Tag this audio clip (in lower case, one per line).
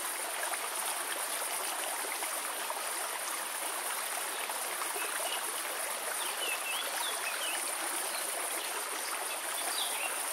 waterfall burbling